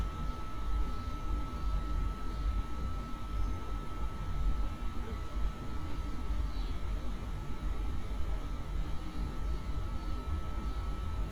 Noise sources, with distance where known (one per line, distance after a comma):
unidentified alert signal